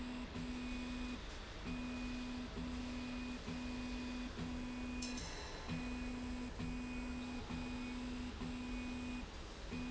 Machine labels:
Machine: slide rail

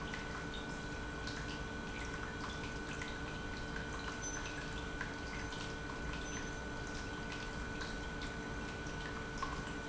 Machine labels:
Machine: pump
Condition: normal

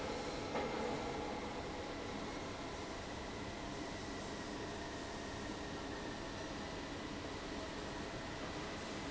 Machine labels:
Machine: fan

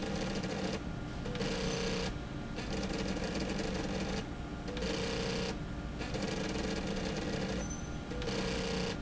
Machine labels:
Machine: slide rail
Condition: abnormal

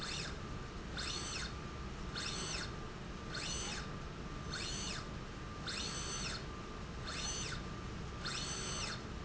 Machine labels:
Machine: slide rail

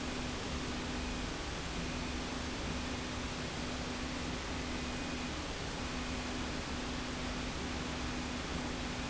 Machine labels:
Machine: slide rail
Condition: normal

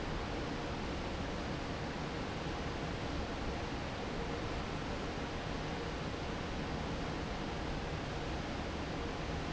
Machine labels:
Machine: fan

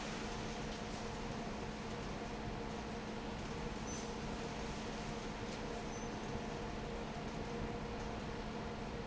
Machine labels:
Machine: fan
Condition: normal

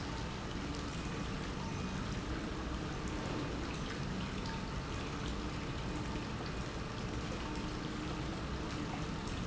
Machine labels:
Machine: pump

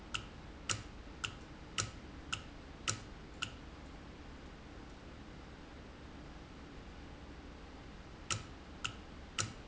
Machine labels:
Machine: valve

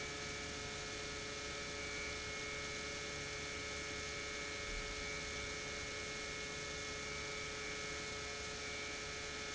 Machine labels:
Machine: pump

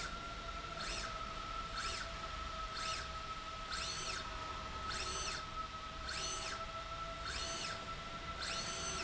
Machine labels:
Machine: slide rail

